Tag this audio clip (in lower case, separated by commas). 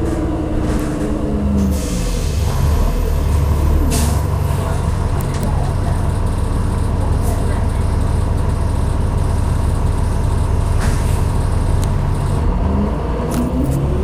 bus, vehicle, motor vehicle (road)